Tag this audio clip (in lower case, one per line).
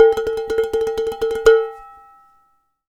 home sounds
dishes, pots and pans